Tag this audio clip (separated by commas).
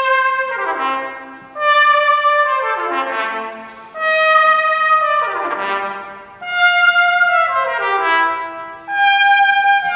playing cornet